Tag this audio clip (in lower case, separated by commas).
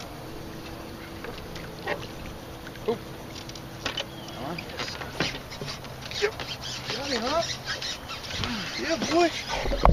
speech, slosh, outside, rural or natural